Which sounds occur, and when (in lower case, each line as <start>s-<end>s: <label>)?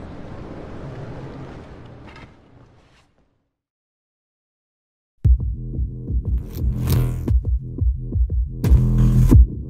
0.0s-3.6s: video game sound
2.0s-2.2s: generic impact sounds
2.6s-3.0s: surface contact
3.1s-3.2s: generic impact sounds
5.2s-9.6s: music